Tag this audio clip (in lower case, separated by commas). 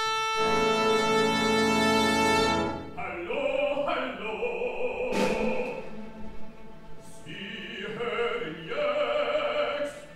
music